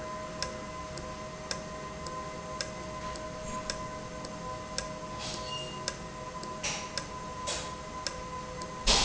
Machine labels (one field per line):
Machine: valve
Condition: normal